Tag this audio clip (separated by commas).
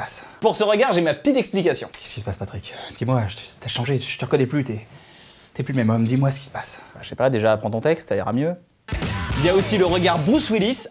Music, Speech